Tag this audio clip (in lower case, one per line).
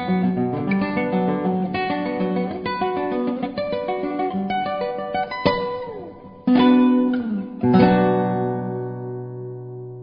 music